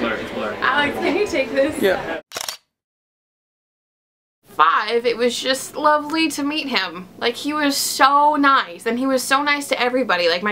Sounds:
speech, inside a large room or hall

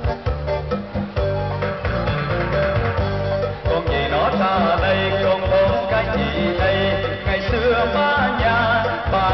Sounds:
music, male singing

